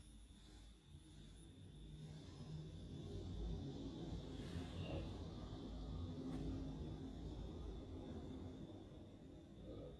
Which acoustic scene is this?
elevator